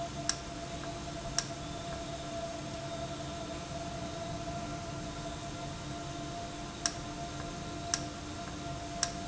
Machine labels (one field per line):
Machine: valve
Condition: normal